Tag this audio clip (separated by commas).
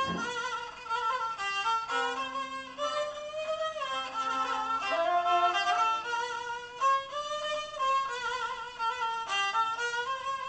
Music, Musical instrument, fiddle